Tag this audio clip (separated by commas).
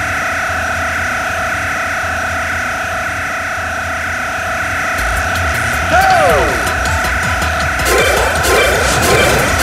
Music